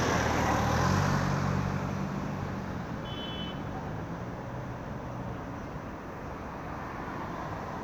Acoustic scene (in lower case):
street